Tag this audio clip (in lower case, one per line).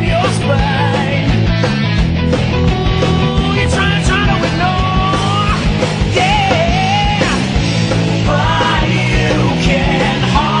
music